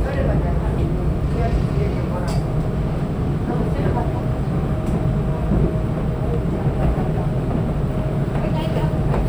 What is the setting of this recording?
subway train